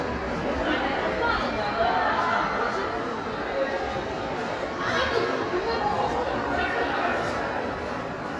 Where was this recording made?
in a crowded indoor space